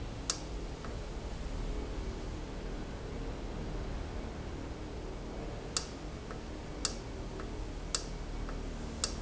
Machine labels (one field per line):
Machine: valve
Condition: normal